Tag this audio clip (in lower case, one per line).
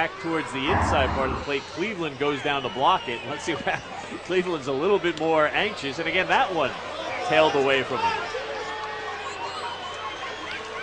speech